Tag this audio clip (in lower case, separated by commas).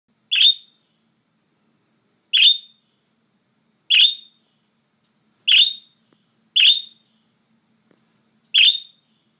domestic animals, bird, inside a small room